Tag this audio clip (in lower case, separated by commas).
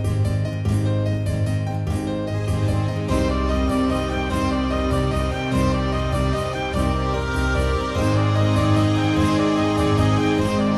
music, harpsichord